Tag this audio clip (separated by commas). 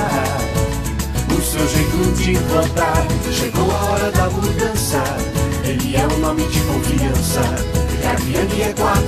Music, Jingle (music)